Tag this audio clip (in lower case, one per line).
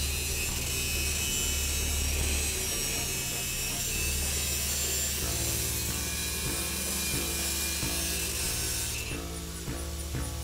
musical instrument
music
drum